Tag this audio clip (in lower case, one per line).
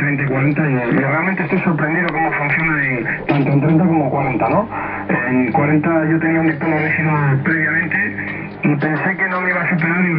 speech
radio